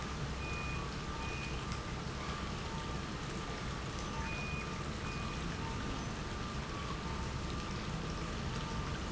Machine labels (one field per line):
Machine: pump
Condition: normal